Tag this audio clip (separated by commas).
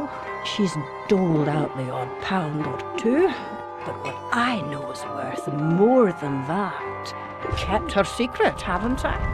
Speech, Music